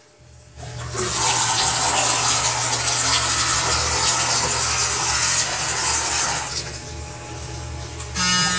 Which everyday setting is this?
restroom